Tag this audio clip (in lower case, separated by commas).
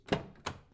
car, motor vehicle (road), vehicle